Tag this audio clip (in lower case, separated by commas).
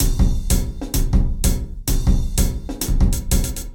drum kit, musical instrument, music, percussion